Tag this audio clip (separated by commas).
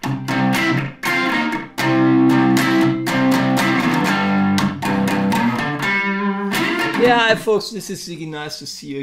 Music, Speech, Musical instrument, Guitar, Plucked string instrument, Strum